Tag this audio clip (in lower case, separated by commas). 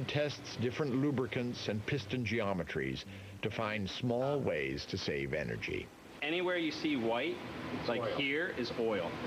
speech